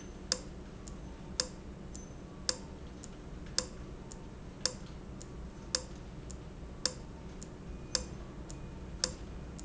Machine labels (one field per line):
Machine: valve